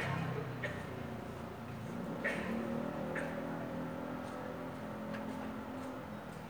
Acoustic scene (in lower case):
residential area